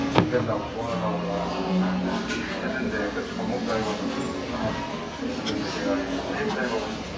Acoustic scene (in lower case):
crowded indoor space